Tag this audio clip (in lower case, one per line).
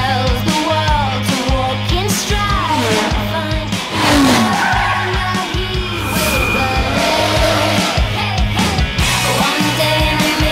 music